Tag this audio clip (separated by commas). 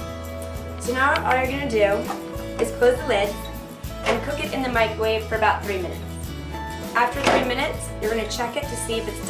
Speech, Music